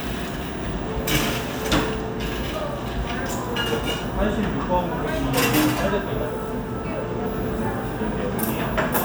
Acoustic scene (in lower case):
cafe